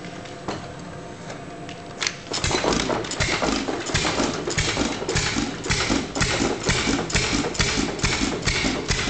An old engine idling while warming up